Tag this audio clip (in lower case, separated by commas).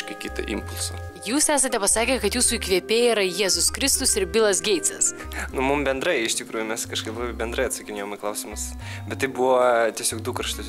music, speech